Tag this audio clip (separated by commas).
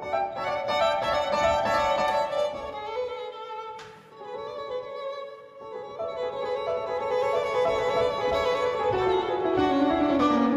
Violin, Music, Bowed string instrument, Musical instrument